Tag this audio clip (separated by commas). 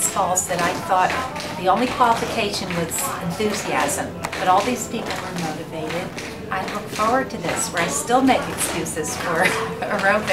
Music, woman speaking, Tap, Speech